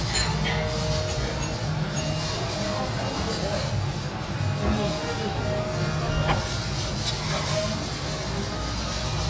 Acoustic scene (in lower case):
restaurant